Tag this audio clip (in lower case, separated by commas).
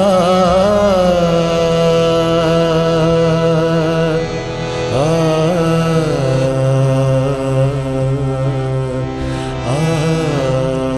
carnatic music, music